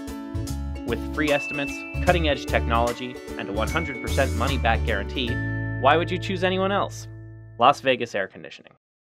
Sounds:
speech, music

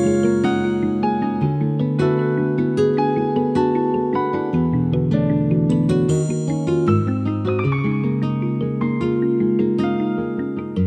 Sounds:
music

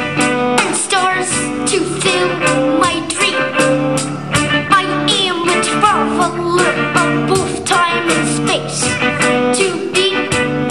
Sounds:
music

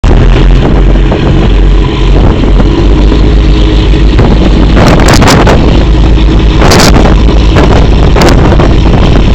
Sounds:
wind noise (microphone), wind, ship

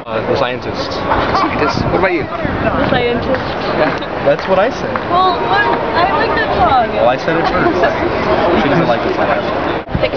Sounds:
speech

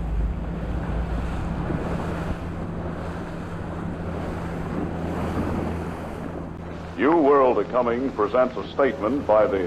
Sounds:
speech, outside, rural or natural

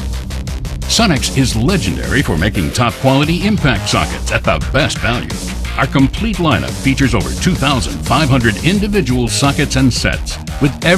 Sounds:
music, speech

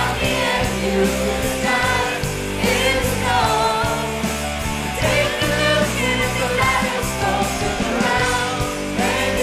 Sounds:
vocal music, singing

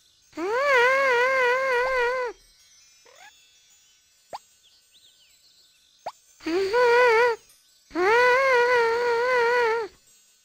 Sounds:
music

